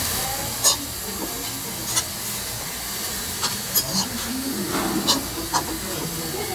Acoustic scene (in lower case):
restaurant